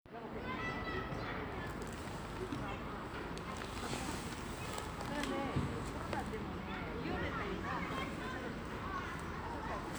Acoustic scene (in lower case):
residential area